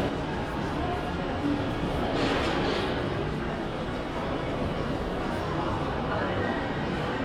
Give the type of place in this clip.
crowded indoor space